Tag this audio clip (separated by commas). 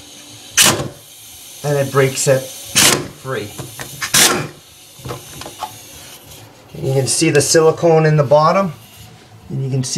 Speech